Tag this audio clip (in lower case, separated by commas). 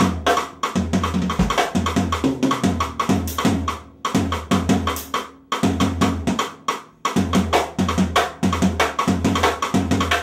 playing timbales